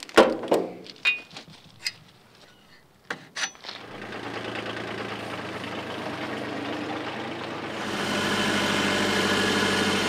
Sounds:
Vehicle

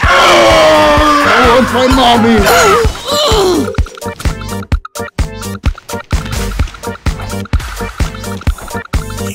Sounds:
Music, Speech

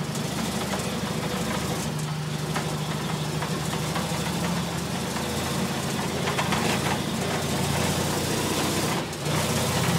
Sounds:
Vehicle, Truck

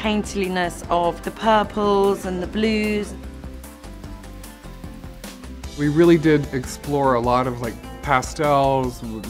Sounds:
Female speech

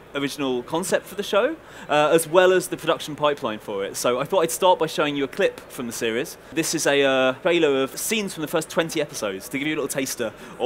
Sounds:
Speech

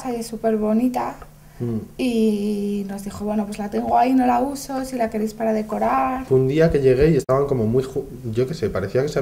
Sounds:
Speech

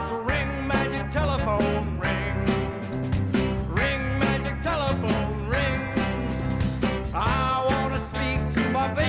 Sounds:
Music

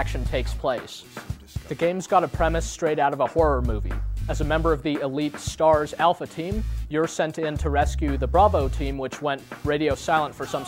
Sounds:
Music, Speech

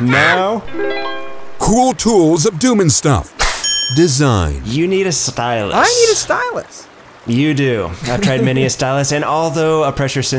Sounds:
Speech, Music

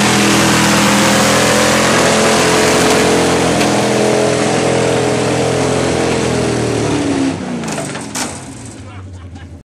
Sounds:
Vehicle, Truck

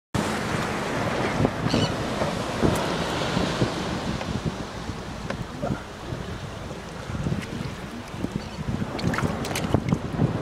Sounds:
Wind noise (microphone), Wind, Waves, Ocean

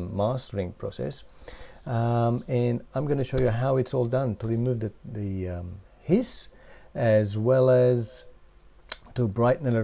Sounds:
Speech

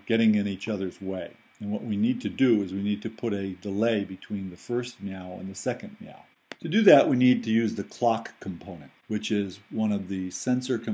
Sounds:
Speech

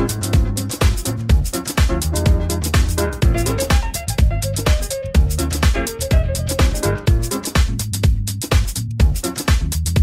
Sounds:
Music

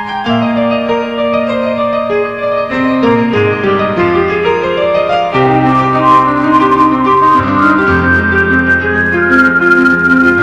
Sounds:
Music, Piano

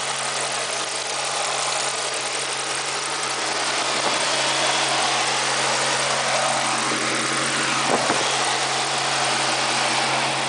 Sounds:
outside, urban or man-made, Vehicle

